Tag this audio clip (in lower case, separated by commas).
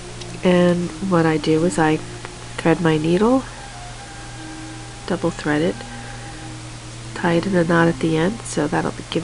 music, speech